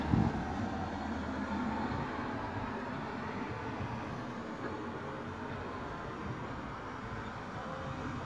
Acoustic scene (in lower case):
street